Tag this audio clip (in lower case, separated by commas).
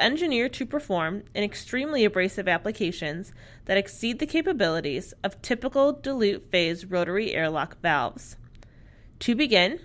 speech